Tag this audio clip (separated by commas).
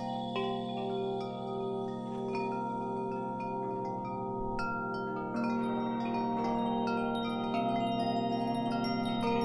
Mallet percussion, Glockenspiel, xylophone, Wind chime